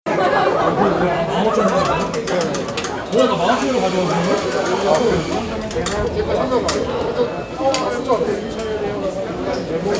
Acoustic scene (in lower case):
cafe